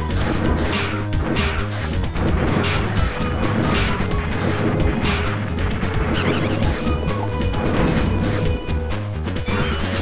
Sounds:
music

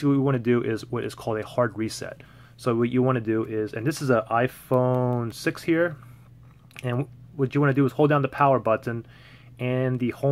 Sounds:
speech

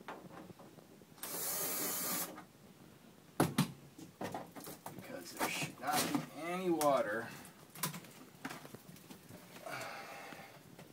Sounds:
speech

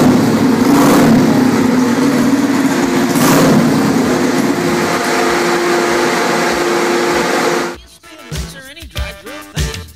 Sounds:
vehicle, inside a large room or hall, music, motorcycle

